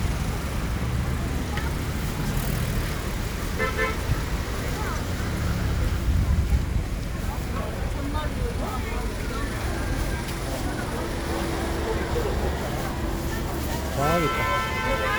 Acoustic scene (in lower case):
residential area